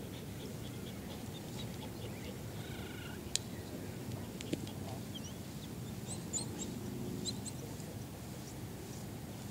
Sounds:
dog, animal, pets

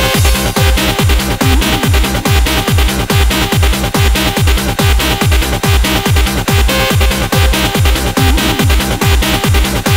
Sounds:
techno, trance music

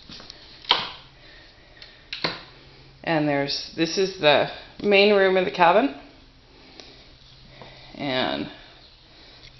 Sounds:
speech

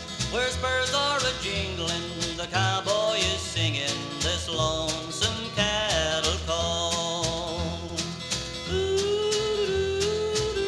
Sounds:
music, singing

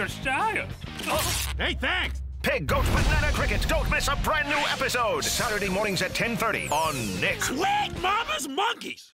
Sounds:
speech, music

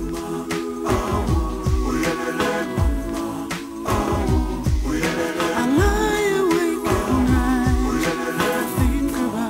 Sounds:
soul music

